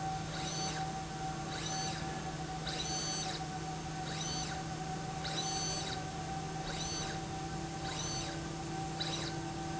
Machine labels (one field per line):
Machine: slide rail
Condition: abnormal